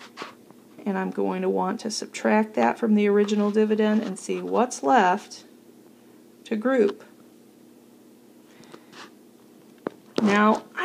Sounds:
inside a small room, Speech

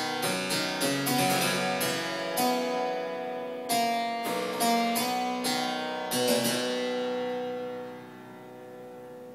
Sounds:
playing harpsichord

